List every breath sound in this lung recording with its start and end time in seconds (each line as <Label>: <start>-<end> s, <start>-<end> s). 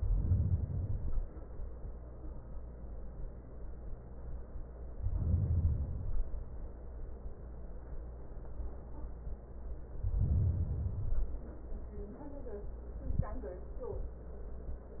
Inhalation: 0.00-1.30 s, 4.99-6.30 s, 9.97-11.36 s